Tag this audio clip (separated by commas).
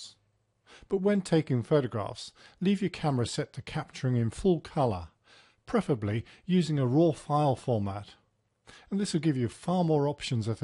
Speech